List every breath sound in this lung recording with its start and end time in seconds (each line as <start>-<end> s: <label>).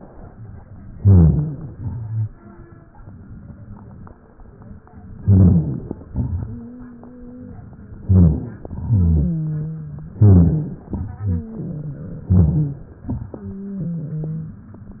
0.97-1.75 s: inhalation
1.74-2.52 s: exhalation
5.23-6.09 s: inhalation
6.12-7.57 s: exhalation
6.46-7.53 s: wheeze
8.03-8.90 s: inhalation
8.93-10.15 s: exhalation
8.93-10.15 s: wheeze
10.19-10.87 s: inhalation
10.90-12.28 s: exhalation
12.31-13.03 s: inhalation
13.33-14.61 s: wheeze